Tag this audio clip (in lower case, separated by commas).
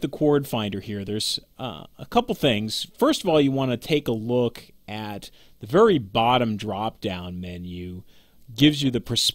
speech